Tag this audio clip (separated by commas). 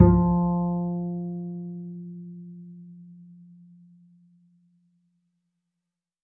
Musical instrument, Bowed string instrument, Music